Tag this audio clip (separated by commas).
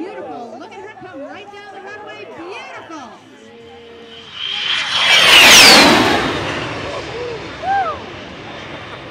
airplane flyby